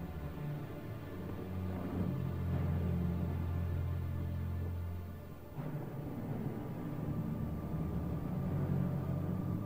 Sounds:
video game music

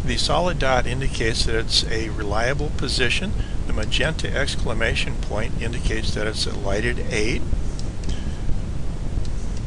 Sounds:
speech

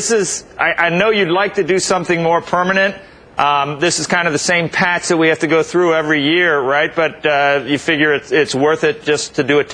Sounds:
speech

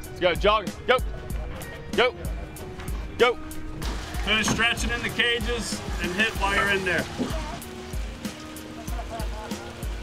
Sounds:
speech, music

